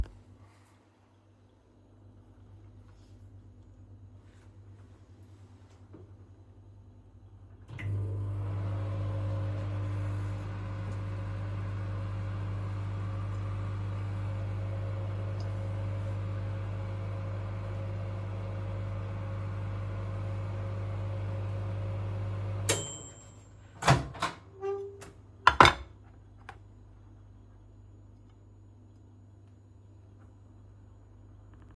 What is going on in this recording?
I put the phone next to the microwave. It ran until it made a sound, then I opened the door and put a plate on the table.